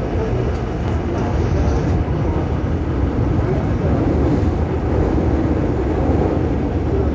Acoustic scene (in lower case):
subway train